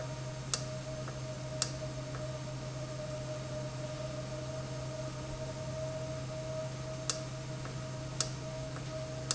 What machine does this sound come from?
valve